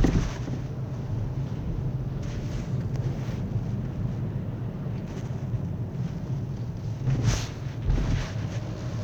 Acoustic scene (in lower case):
car